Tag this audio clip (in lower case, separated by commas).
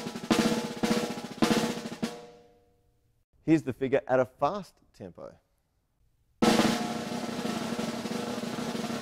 musical instrument, drum kit, speech, music, roll, drum